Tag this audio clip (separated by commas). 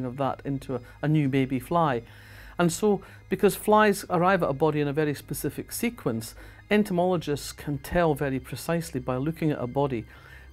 Music, Speech